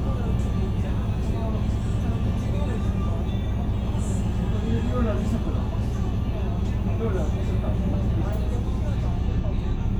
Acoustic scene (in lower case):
bus